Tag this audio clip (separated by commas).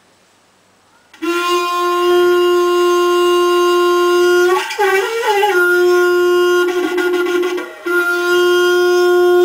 Shofar, Wind instrument